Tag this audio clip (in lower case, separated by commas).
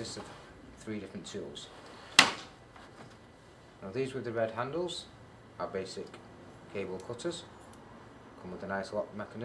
speech